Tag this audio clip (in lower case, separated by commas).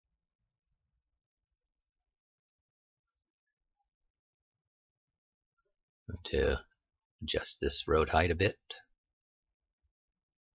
narration